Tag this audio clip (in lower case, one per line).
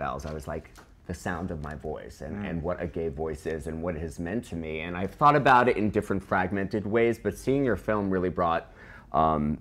speech